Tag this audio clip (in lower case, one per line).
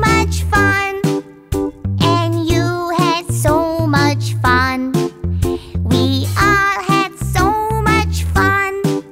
child singing